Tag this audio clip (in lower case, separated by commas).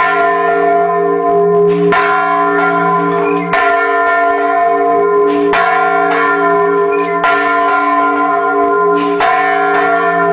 church bell ringing